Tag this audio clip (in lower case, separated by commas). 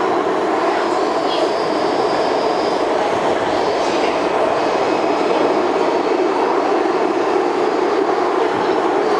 metro